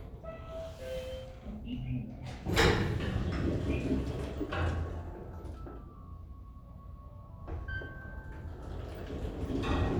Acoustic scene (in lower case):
elevator